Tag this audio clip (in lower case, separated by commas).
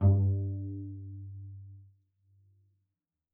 bowed string instrument, music, musical instrument